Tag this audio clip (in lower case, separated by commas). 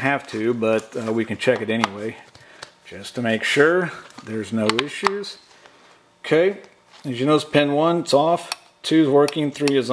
speech, inside a small room